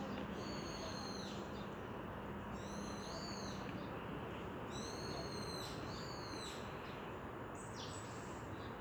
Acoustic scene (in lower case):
park